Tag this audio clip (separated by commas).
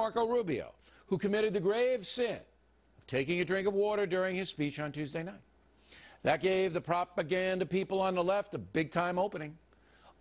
Speech